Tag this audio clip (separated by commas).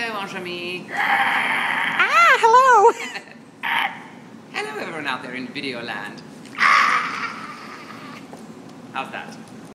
Speech